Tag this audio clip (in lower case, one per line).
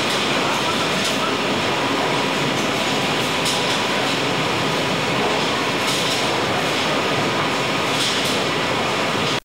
speech